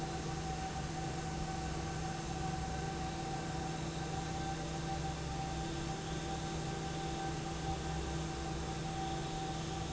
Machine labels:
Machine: fan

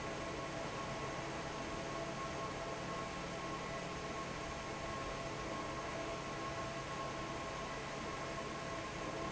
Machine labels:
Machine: fan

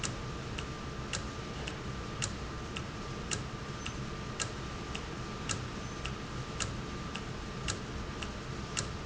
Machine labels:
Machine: valve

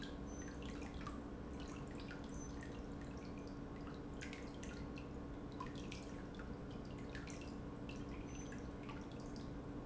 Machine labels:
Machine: pump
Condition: normal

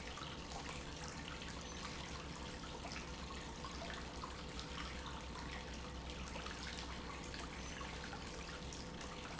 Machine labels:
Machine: pump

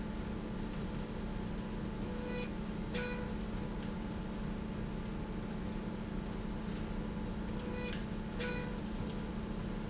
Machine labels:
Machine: slide rail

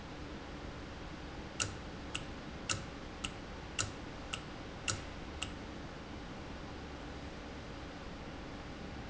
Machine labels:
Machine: valve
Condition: normal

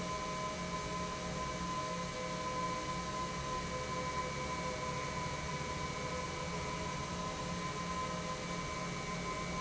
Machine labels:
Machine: pump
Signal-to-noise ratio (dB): -6 dB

